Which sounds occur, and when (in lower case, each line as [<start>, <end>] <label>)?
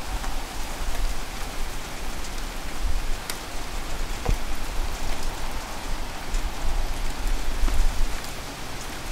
[0.00, 9.11] rain on surface
[0.00, 9.11] wind
[2.78, 3.08] wind noise (microphone)
[3.27, 3.38] tick
[4.22, 4.34] tap
[6.30, 6.93] wind noise (microphone)
[7.61, 7.90] wind noise (microphone)
[7.62, 7.74] tap